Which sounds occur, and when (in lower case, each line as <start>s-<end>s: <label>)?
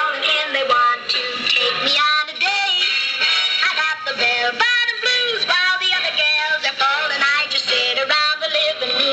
0.0s-2.8s: synthetic singing
0.0s-9.1s: music
3.5s-9.1s: synthetic singing